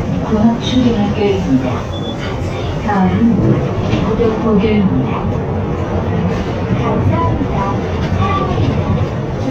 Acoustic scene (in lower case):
bus